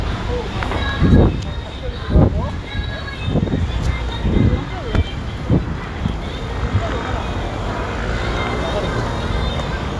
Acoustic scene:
street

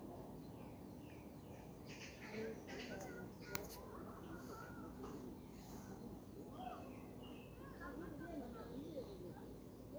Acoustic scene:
park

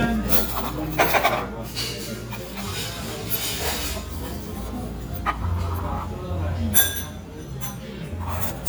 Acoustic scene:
restaurant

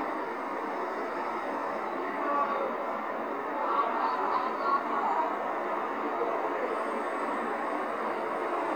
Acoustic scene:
street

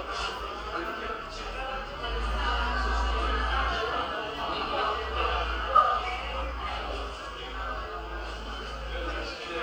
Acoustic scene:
cafe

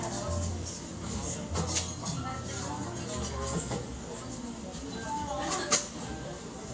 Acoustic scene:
cafe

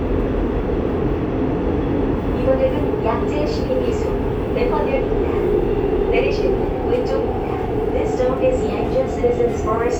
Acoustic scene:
subway train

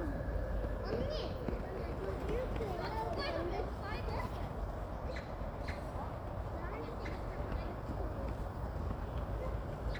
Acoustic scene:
residential area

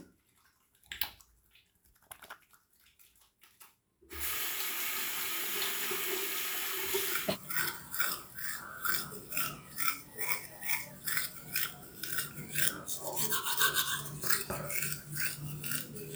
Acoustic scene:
restroom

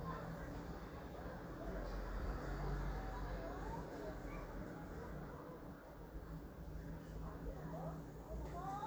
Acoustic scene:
residential area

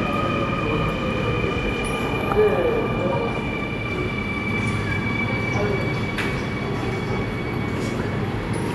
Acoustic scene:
subway station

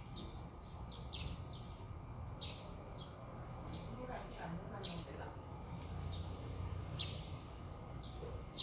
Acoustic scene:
residential area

